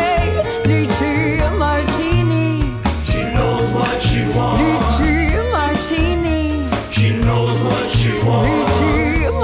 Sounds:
inside a large room or hall, Music

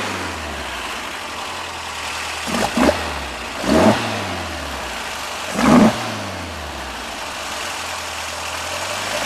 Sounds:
Vehicle, Accelerating, Medium engine (mid frequency), revving, Engine

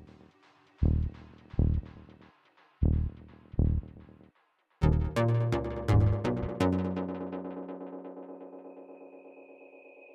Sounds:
Music

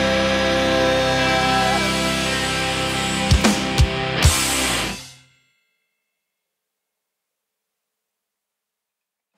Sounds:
Musical instrument, Music, Drum kit

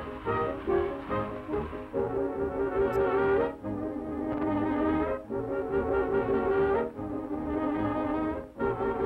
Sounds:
French horn

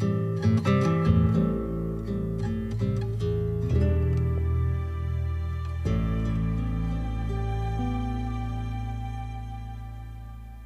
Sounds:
Music, Sad music

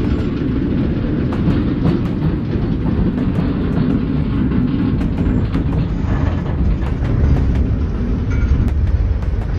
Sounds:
Railroad car, Vehicle, Train, outside, urban or man-made

